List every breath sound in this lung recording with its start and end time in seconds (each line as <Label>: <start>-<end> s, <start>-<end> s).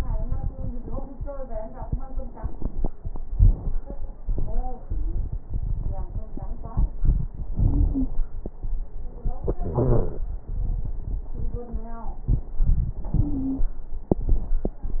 Wheeze: 7.67-8.13 s, 9.70-10.16 s, 13.20-13.66 s